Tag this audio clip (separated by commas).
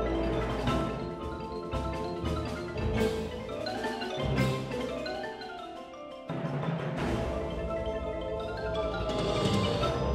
Percussion, Music